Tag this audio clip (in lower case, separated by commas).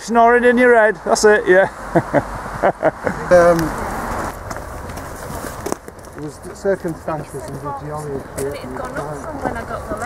speech, footsteps